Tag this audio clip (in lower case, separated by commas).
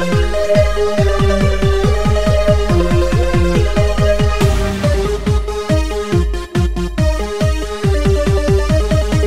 electronic music, dubstep, music